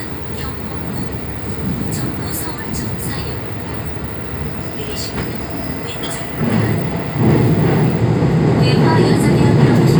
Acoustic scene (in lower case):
subway train